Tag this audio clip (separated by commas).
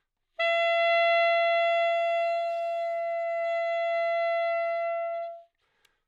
Musical instrument, Wind instrument, Music